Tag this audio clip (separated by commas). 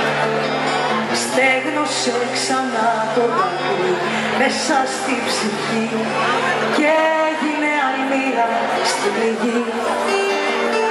Music